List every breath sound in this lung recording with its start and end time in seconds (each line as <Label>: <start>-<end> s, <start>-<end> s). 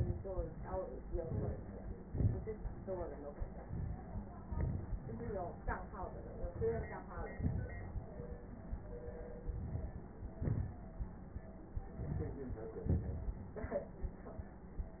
Inhalation: 1.08-2.05 s, 3.67-4.44 s, 6.35-7.08 s, 9.39-10.37 s, 11.74-12.77 s
Exhalation: 2.03-3.65 s, 4.45-5.07 s, 7.09-8.40 s, 10.39-11.74 s, 12.77-14.17 s
Crackles: 4.45-5.07 s, 6.35-7.08 s, 7.09-8.40 s, 9.39-10.37 s, 10.39-11.74 s, 11.74-12.77 s, 12.77-14.17 s